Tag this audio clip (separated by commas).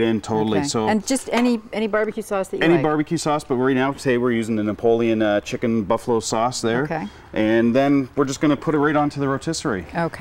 Speech